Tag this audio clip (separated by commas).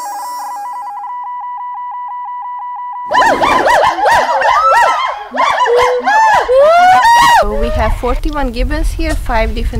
gibbon howling